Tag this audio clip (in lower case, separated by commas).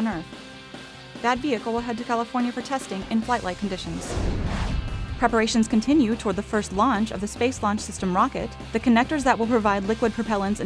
speech, music